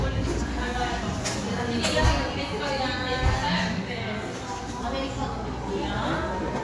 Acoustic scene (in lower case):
cafe